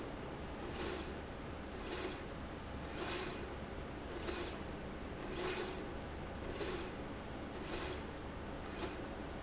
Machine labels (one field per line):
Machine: slide rail